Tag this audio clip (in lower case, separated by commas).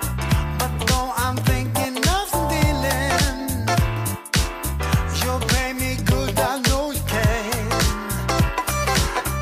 funk, music